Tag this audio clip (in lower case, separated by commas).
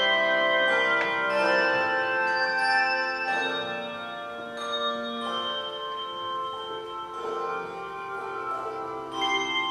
music